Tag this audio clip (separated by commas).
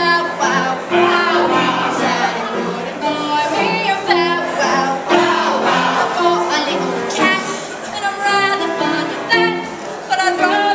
Music